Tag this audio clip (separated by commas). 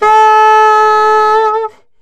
Musical instrument, Music, woodwind instrument